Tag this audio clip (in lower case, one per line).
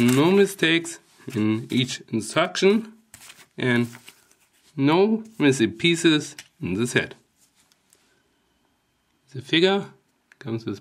speech